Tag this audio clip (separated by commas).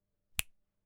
Finger snapping, Hands